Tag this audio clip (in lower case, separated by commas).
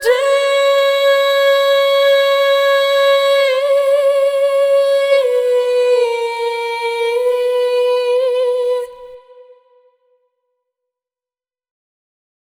human voice, singing, female singing